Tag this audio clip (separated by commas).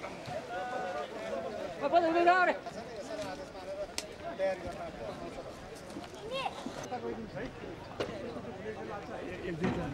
Speech